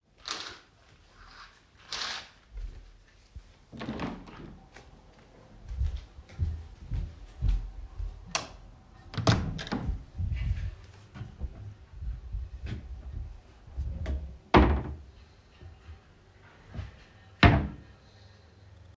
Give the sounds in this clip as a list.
window, footsteps, light switch, door, wardrobe or drawer